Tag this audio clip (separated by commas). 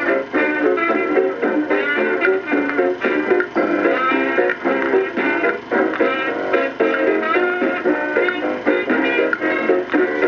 Music